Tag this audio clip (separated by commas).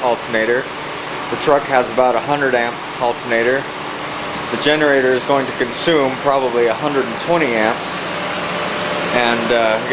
Speech, Stream